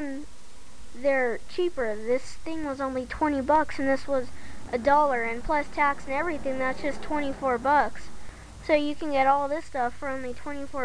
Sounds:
speech

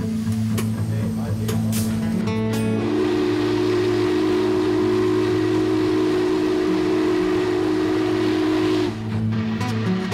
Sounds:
train horn
train
train wagon
rail transport

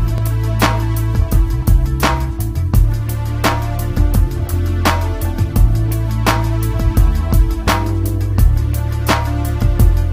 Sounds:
music

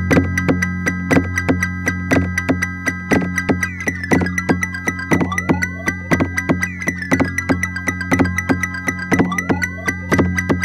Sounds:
synthesizer
music
electronic music

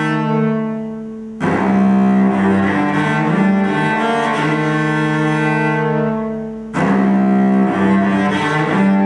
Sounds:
musical instrument
cello
music

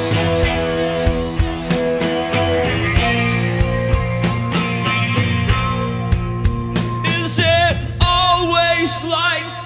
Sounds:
singing
rock music

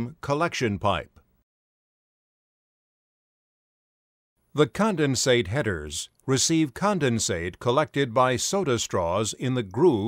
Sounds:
speech

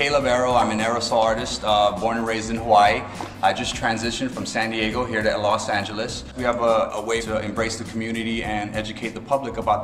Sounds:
speech
music

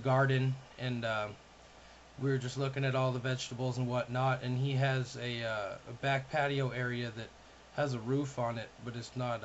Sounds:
speech

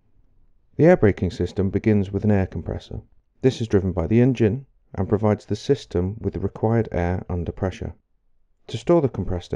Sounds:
speech

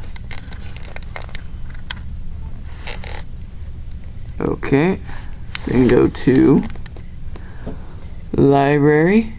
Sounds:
speech

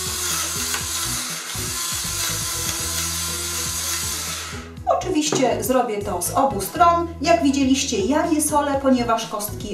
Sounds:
speech
music

